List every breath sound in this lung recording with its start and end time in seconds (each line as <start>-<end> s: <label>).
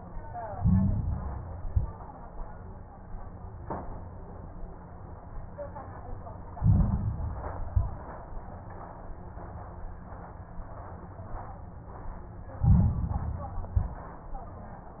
0.49-1.44 s: inhalation
0.49-1.44 s: crackles
1.50-2.01 s: exhalation
1.50-2.01 s: crackles
6.52-7.58 s: inhalation
6.52-7.58 s: crackles
7.64-8.15 s: exhalation
7.64-8.15 s: crackles
12.60-13.66 s: inhalation
12.60-13.66 s: crackles
13.68-14.19 s: exhalation
13.68-14.19 s: crackles